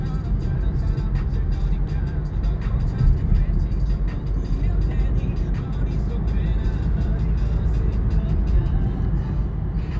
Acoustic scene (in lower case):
car